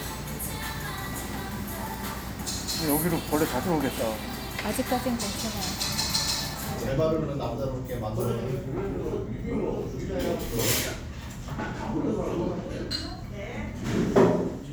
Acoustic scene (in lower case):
restaurant